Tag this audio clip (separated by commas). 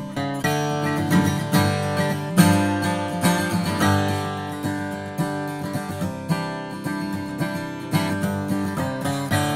Music